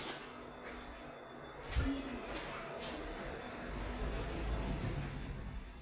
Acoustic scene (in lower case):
elevator